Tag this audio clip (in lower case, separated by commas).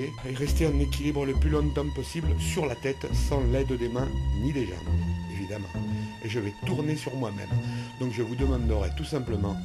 speech, music